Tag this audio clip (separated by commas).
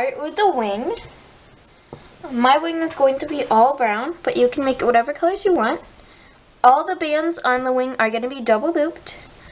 Speech